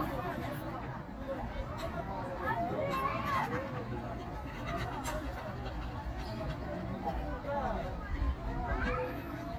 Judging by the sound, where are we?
in a park